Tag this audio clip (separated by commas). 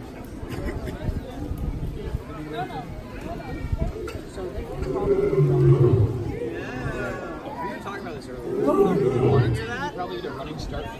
lions roaring